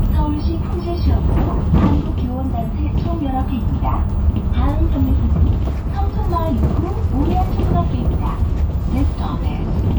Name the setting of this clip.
bus